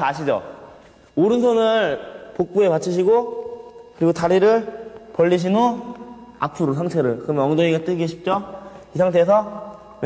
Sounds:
Speech

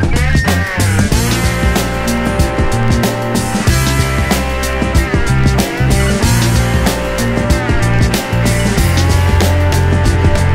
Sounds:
Duck, Music, Quack, Animal

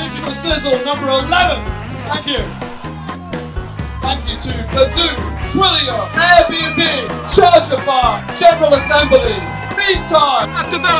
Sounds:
Music, Speech

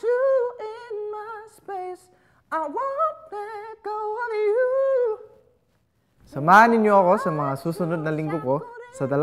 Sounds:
people battle cry

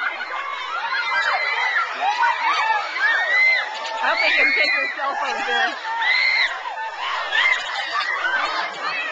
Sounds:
Speech

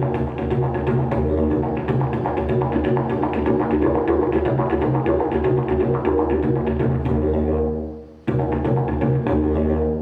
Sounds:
Music, Didgeridoo

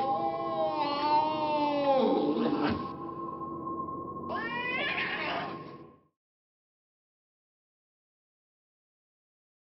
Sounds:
Meow

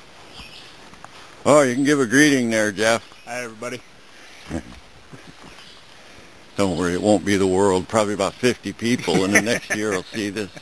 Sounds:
Speech

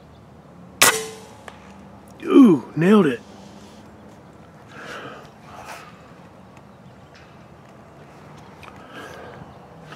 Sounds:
Speech

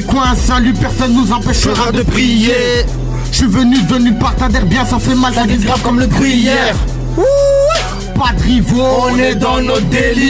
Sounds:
Music

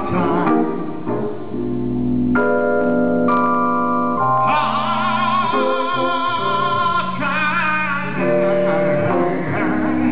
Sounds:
Music

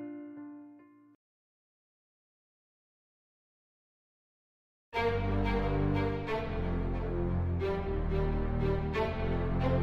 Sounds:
Music

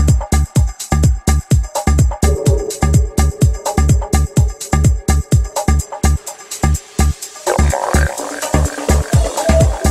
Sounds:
Music

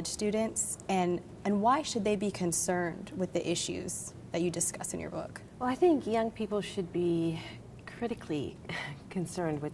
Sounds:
Speech

